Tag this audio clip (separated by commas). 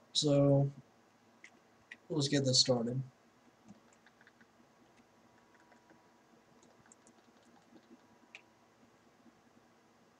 Speech